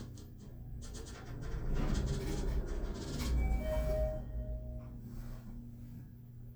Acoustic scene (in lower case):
elevator